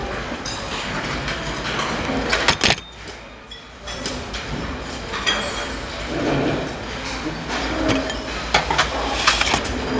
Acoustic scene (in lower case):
restaurant